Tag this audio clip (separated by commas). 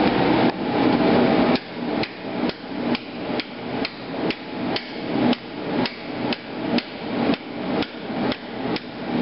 Hammer